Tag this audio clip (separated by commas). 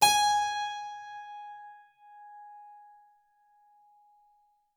Music, Keyboard (musical), Musical instrument